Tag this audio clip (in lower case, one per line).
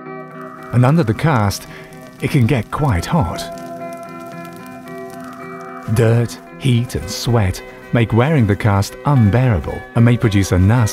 speech
music